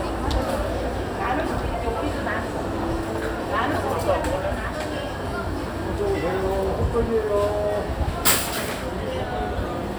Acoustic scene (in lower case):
crowded indoor space